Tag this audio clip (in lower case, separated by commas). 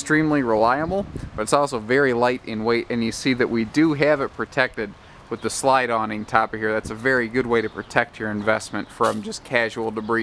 speech